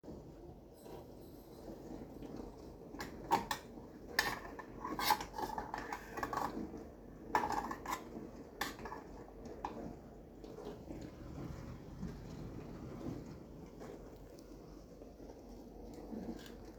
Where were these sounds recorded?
kitchen